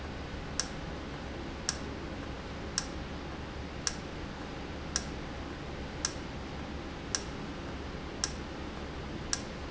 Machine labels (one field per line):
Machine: valve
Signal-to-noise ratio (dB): -6 dB